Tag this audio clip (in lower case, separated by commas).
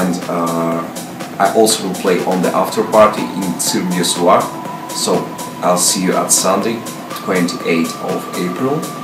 music, speech